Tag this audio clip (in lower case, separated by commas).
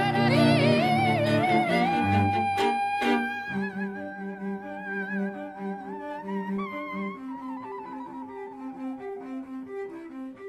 bowed string instrument, fiddle